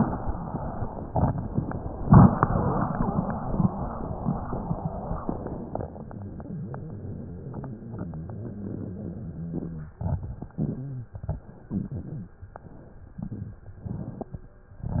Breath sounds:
Inhalation: 10.53-11.18 s, 11.69-12.39 s, 13.83-14.53 s, 14.76-15.00 s
Exhalation: 9.86-10.56 s, 11.19-11.68 s, 12.38-13.09 s, 13.12-13.82 s
Crackles: 9.88-10.52 s, 10.53-11.18 s, 11.19-11.68 s, 11.69-12.39 s, 13.14-13.84 s

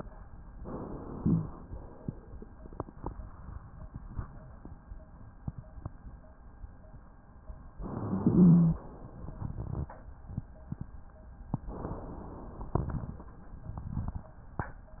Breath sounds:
Inhalation: 0.59-1.54 s, 7.80-8.84 s, 11.67-12.71 s
Wheeze: 1.10-1.54 s, 8.23-8.84 s

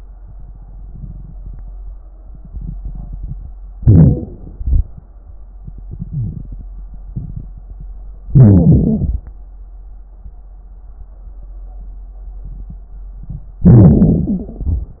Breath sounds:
Inhalation: 3.81-4.33 s, 8.34-9.21 s, 13.65-14.53 s
Exhalation: 4.53-4.92 s, 14.50-15.00 s
Wheeze: 3.81-4.33 s, 6.09-6.48 s, 8.34-9.21 s

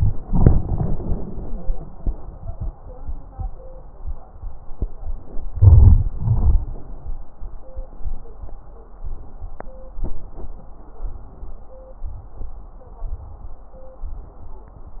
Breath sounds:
Inhalation: 5.53-6.09 s
Exhalation: 0.25-1.76 s, 6.20-6.88 s
Wheeze: 1.32-1.67 s
Crackles: 5.53-6.09 s

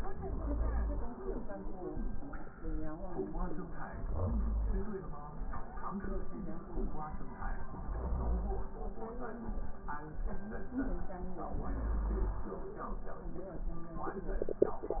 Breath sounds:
Inhalation: 0.09-1.19 s, 3.90-5.01 s, 7.63-8.74 s, 11.51-12.61 s

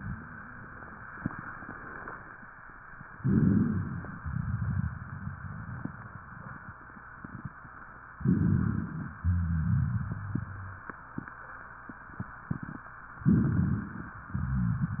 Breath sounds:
Inhalation: 3.19-4.22 s, 8.15-9.18 s, 13.19-14.22 s
Exhalation: 4.24-6.71 s, 9.18-10.94 s, 14.29-15.00 s
Rhonchi: 3.18-4.21 s, 8.14-9.17 s, 9.19-10.87 s, 13.18-14.21 s, 14.31-15.00 s
Crackles: 4.21-6.74 s

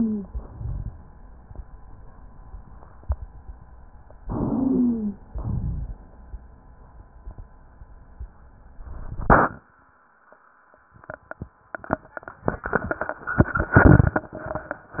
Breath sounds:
Inhalation: 4.21-5.26 s
Exhalation: 5.26-5.99 s
Wheeze: 0.00-0.32 s, 4.21-5.26 s
Rhonchi: 5.26-5.99 s

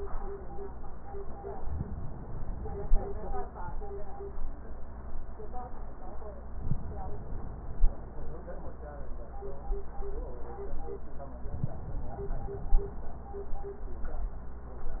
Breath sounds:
Inhalation: 1.65-3.28 s, 6.49-8.13 s, 11.54-13.17 s

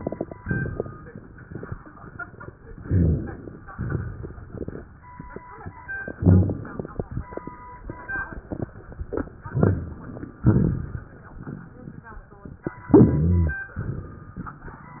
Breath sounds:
Inhalation: 2.84-3.62 s, 6.18-6.93 s, 9.53-10.42 s, 12.92-13.64 s
Exhalation: 3.75-4.86 s, 10.46-12.12 s
Rhonchi: 6.18-6.57 s, 12.89-13.56 s
Crackles: 2.81-3.64 s, 3.75-4.86 s, 6.18-6.93 s, 9.53-10.42 s

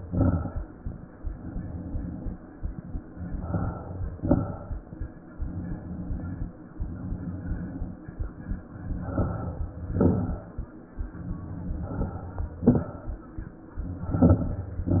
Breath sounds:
Inhalation: 3.31-4.14 s, 8.89-9.73 s, 11.63-12.46 s, 13.89-14.72 s
Exhalation: 0.00-0.64 s, 4.13-4.96 s, 9.76-10.59 s, 12.49-13.32 s, 14.75-15.00 s
Crackles: 0.00-0.64 s, 4.13-4.96 s, 9.76-10.59 s, 12.49-13.32 s, 13.89-14.72 s, 14.75-15.00 s

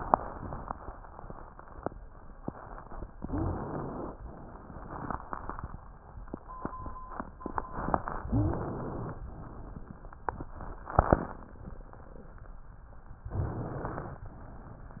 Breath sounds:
Inhalation: 3.19-4.16 s, 8.23-9.20 s, 13.32-14.29 s
Wheeze: 3.25-3.57 s, 8.26-8.58 s

